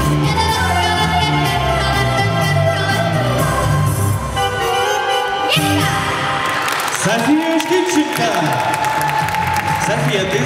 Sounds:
yodelling

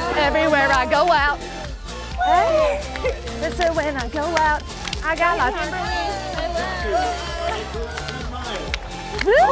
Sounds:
speech
music

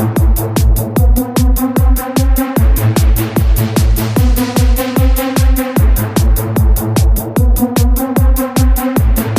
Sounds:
electronic music
music
techno
trance music

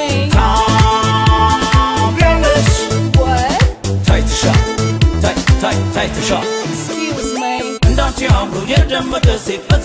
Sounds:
exciting music
music

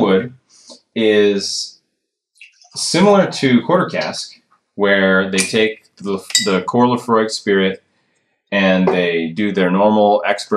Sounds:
speech

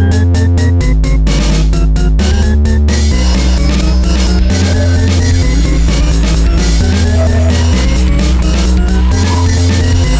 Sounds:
dubstep

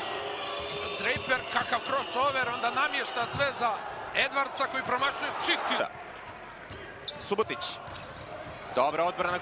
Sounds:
basketball bounce
speech

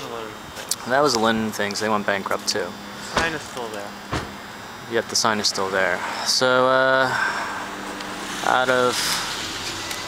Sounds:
speech
car
outside, urban or man-made
vehicle

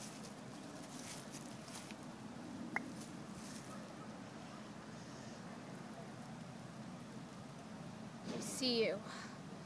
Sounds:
speech

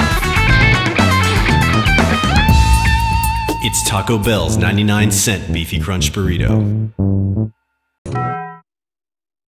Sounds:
speech
music

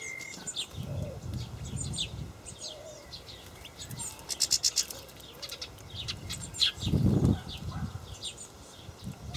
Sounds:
bird

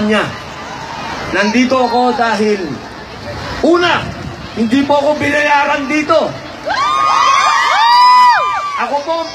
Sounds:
monologue
male speech
speech

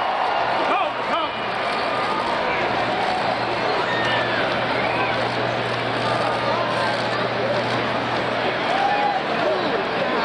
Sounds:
speech

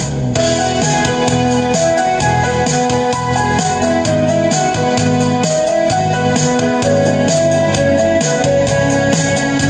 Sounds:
organ
electronic organ

